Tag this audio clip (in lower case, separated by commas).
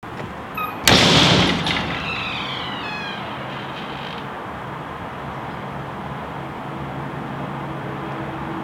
domestic sounds, slam, door